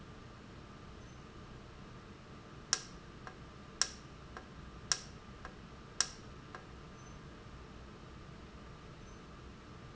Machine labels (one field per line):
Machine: valve